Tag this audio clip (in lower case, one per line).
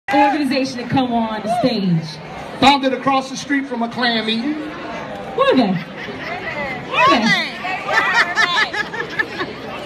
outside, urban or man-made
hubbub
speech